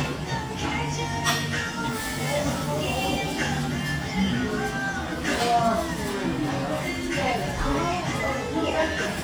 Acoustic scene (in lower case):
restaurant